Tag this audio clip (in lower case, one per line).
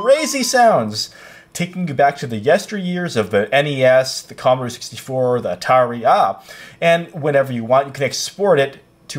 speech